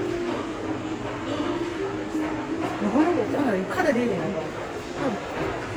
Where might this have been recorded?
in a subway station